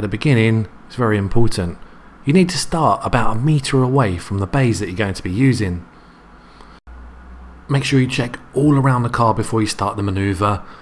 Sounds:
narration
speech

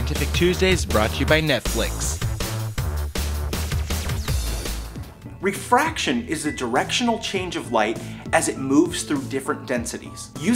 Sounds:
speech
music

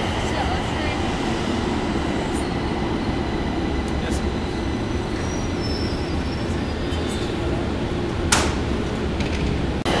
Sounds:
train wagon
rail transport
train
train wheels squealing
metro

